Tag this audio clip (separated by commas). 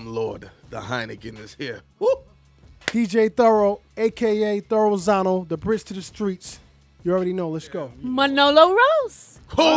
Speech